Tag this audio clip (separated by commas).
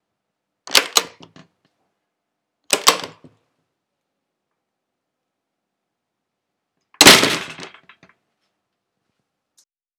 Slam, home sounds, Door